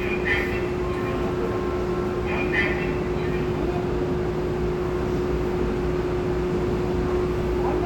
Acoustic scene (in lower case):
subway train